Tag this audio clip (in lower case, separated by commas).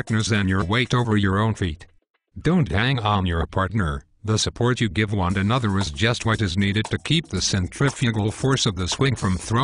speech, speech synthesizer, music